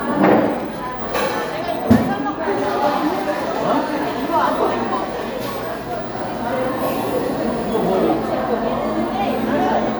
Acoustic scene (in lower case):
cafe